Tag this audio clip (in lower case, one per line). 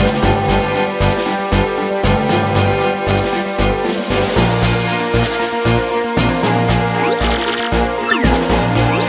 video game music